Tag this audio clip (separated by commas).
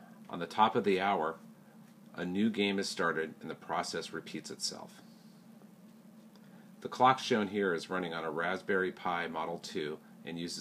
Speech